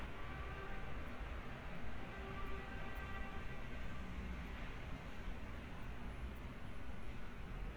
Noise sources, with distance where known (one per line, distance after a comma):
car horn, far